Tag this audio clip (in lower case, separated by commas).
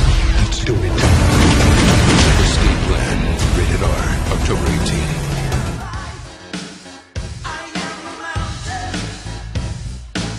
music, speech